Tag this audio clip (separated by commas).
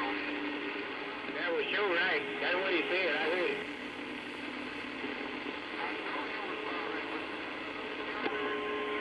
Speech, Radio